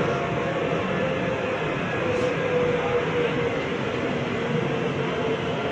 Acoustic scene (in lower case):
subway train